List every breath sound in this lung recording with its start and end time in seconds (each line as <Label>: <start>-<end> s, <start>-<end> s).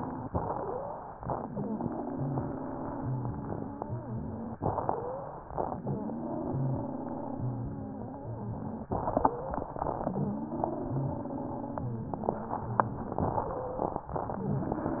Inhalation: 0.28-1.16 s, 4.63-5.54 s, 8.92-9.87 s, 13.22-14.13 s
Exhalation: 1.27-4.57 s, 5.77-8.86 s, 9.94-13.21 s
Wheeze: 0.28-1.03 s, 1.27-4.57 s, 4.63-5.37 s, 5.77-8.86 s, 9.94-13.21 s
Crackles: 8.92-9.87 s, 13.22-14.13 s